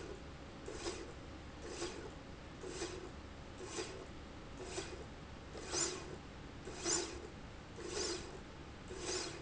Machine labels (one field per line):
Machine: slide rail